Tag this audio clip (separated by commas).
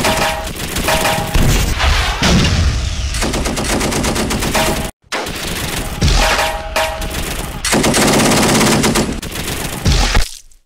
Fusillade